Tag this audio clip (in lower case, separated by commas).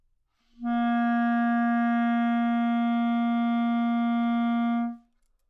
musical instrument, woodwind instrument, music